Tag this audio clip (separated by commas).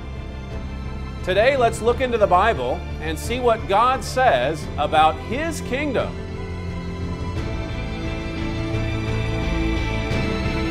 Musical instrument, Music, Speech